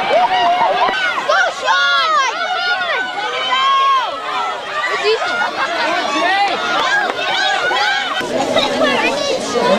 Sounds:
outside, rural or natural, speech, run, crowd

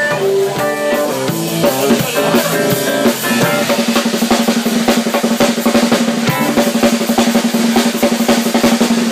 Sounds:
music, drum kit, cymbal, snare drum

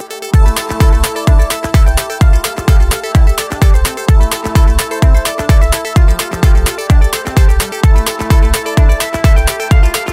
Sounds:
music

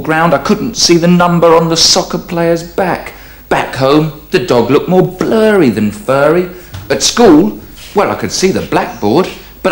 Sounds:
inside a small room, speech

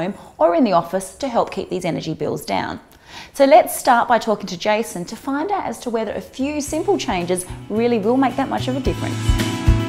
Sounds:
speech, music

